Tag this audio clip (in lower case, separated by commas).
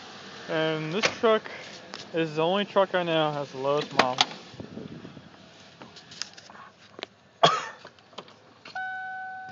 speech